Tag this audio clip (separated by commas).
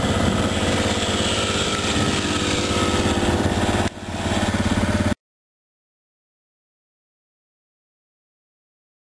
Vehicle, Bicycle